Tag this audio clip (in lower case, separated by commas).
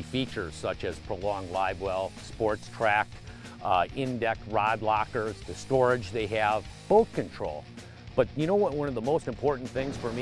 speech, music